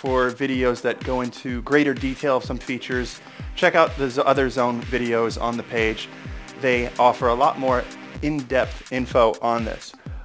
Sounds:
Speech, Music

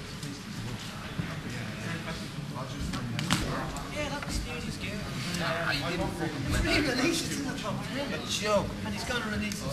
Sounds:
Speech

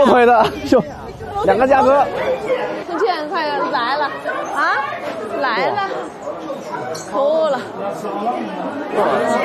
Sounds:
Speech

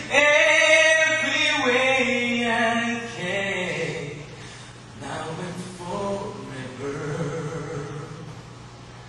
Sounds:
Male singing

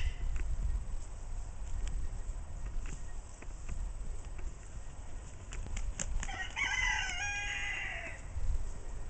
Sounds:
Bird flight

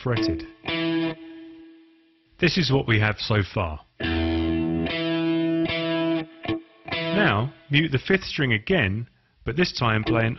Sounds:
Speech, Musical instrument, Guitar, Plucked string instrument, Music, Electric guitar

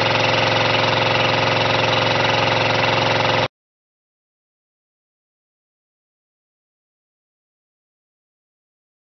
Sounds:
Engine

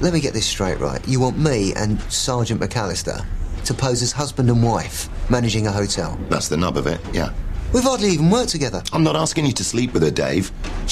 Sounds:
Speech

